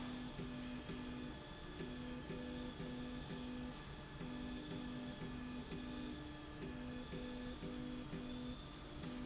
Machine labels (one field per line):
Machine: slide rail